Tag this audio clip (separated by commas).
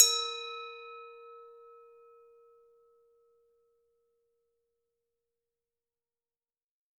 Glass